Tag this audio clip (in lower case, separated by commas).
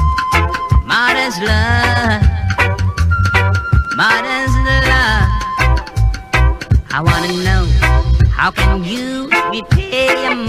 music, reggae